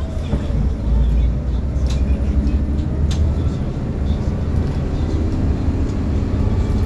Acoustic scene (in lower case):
bus